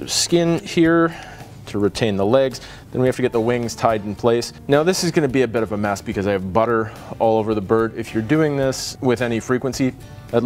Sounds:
music, speech

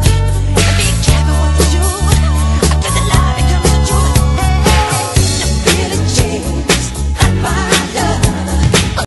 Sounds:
music

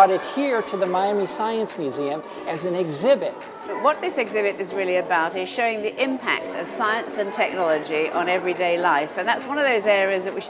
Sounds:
music, speech

